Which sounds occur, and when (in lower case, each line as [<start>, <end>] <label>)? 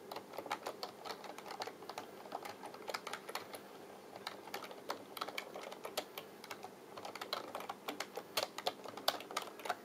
[0.00, 9.84] background noise
[0.01, 3.58] computer keyboard
[4.25, 6.67] computer keyboard
[6.94, 9.69] computer keyboard